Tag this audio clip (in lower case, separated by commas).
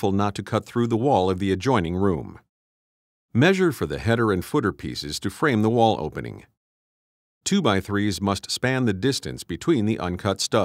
speech